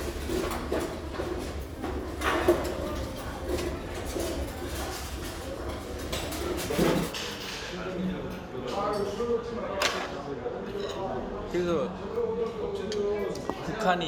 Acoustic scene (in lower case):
restaurant